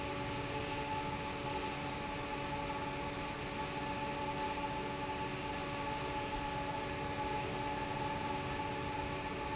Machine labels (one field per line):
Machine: fan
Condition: normal